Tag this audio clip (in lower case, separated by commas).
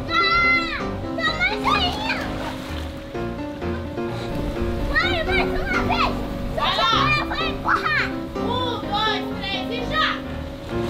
splashing water